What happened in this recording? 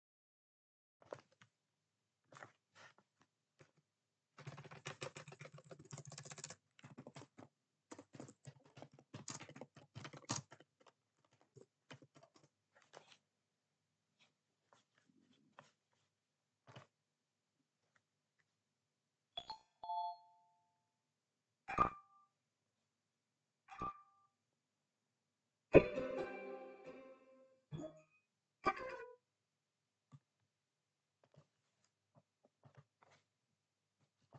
I was typing on the laptop keyboard, then my phone was riniging with many notification sounds